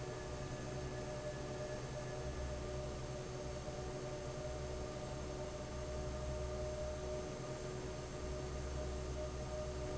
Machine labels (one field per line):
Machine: fan